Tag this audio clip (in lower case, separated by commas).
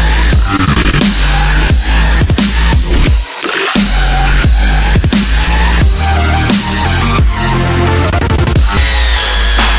electronic music, dubstep, music